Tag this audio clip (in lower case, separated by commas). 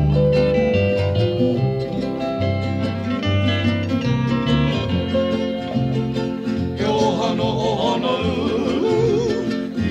guitar, music, musical instrument